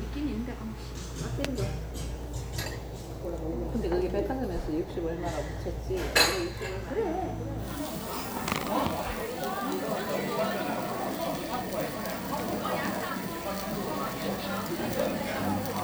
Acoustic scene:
restaurant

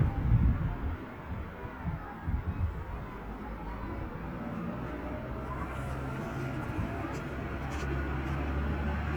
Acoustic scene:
street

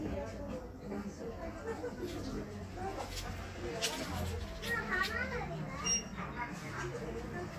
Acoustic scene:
crowded indoor space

